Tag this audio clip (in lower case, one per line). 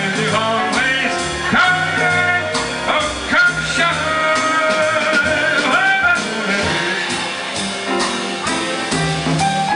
music